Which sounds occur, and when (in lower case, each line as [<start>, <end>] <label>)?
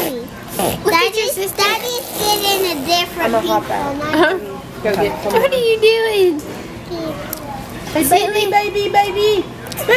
[0.00, 0.25] female speech
[0.00, 9.95] mechanisms
[0.79, 3.04] kid speaking
[3.12, 4.66] female speech
[4.09, 4.30] generic impact sounds
[4.87, 5.04] generic impact sounds
[4.87, 6.36] female speech
[5.24, 5.45] generic impact sounds
[6.33, 6.50] generic impact sounds
[6.88, 7.55] female speech
[7.26, 7.45] generic impact sounds
[7.92, 9.41] female speech
[9.61, 9.78] generic impact sounds
[9.64, 9.95] female speech